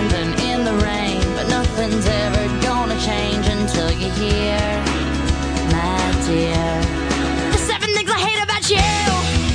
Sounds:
exciting music
music

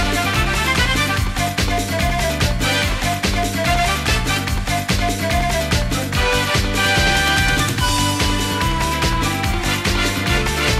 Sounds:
music

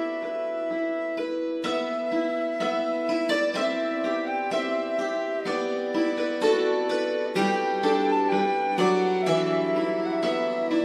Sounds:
music
harp

